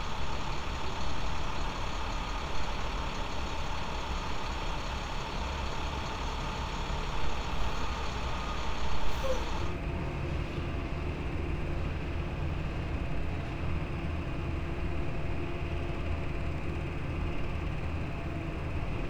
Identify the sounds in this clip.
large-sounding engine